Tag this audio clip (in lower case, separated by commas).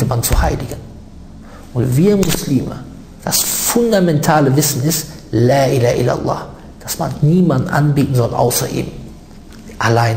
speech